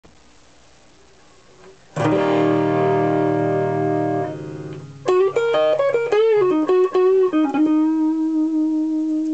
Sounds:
distortion, music

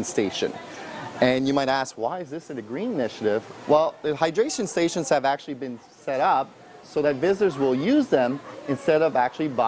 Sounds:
speech

